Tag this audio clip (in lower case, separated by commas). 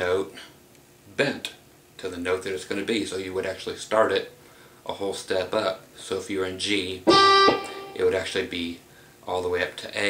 guitar, speech, musical instrument, music, plucked string instrument